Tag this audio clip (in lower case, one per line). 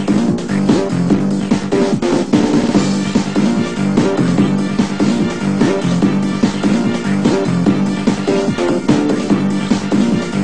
music
background music